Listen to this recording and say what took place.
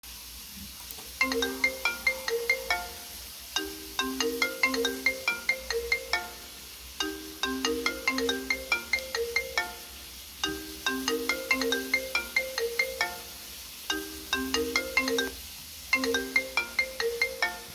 A phone rings while water is running in the background.